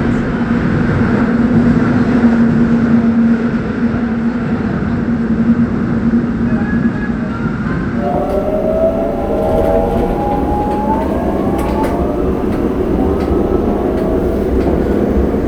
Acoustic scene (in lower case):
subway train